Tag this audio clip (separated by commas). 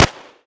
Explosion, Gunshot